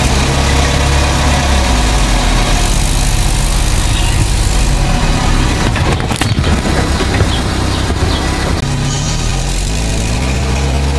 A vehicle runs over something as it passes by